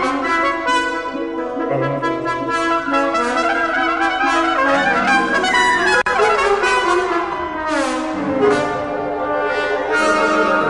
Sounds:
Trumpet, Brass instrument, Trombone

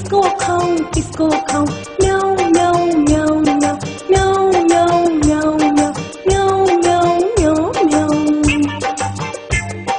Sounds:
Music

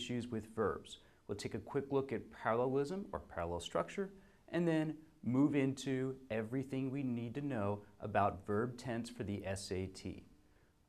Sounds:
Speech

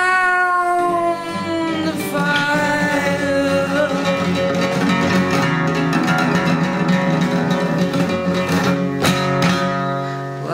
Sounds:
outside, rural or natural, Music

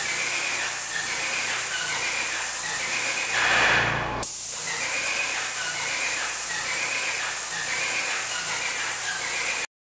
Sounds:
Spray

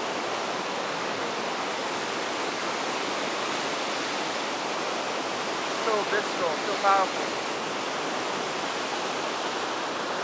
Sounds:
Waterfall

